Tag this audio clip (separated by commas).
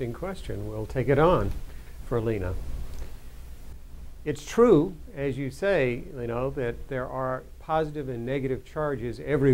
Speech